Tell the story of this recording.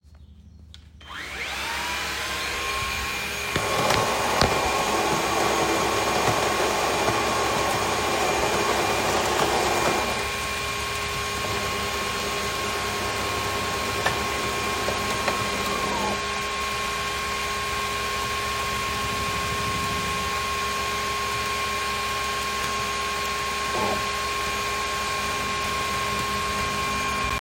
First I started vacuuming cleaning, during that I poured down a coffee and in the back my brother started typing on his laptop